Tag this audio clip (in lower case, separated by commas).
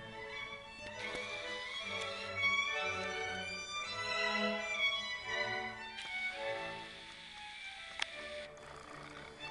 music, violin, musical instrument